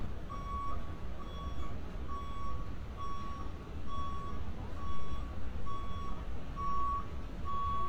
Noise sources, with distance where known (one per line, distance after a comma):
reverse beeper, far